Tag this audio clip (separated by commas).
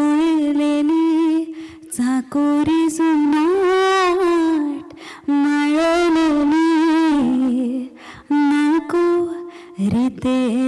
Singing